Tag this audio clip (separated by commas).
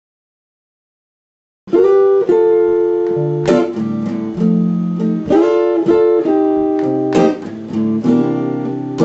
Music, Bowed string instrument